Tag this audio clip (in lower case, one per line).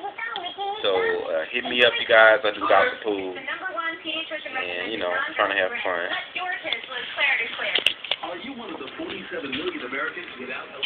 speech